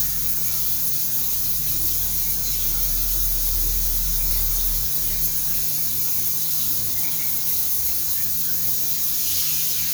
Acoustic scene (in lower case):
restroom